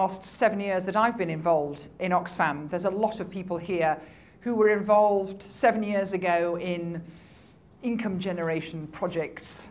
She is giving a speech